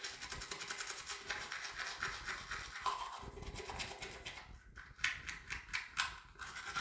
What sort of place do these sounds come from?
restroom